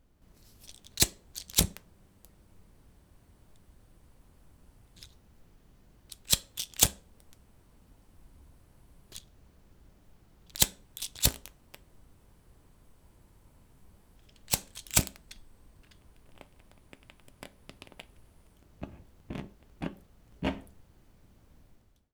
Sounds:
fire

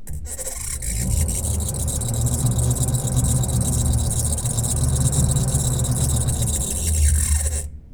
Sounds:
squeak

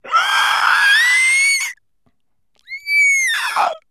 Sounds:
animal
human voice
screaming

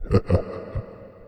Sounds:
laughter
human voice

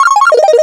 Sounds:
telephone
ringtone
alarm

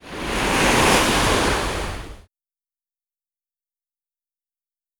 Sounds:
surf
water
ocean

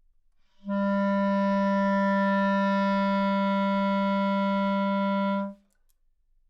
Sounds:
woodwind instrument
musical instrument
music

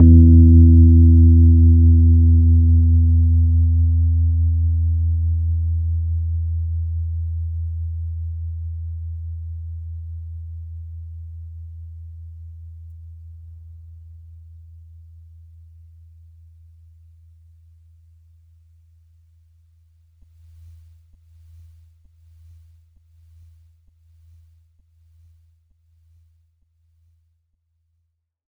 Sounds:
keyboard (musical)
music
musical instrument
piano

